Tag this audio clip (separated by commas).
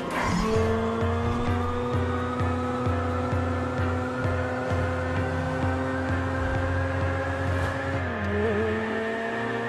Race car, Car, Vehicle